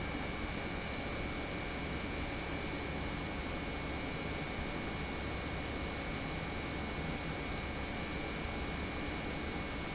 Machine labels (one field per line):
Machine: pump